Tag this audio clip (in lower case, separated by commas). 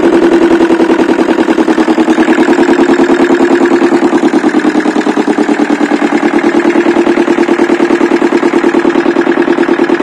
engine, idling